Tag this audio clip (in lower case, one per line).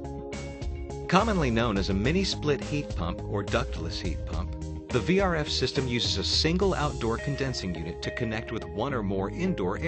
speech
music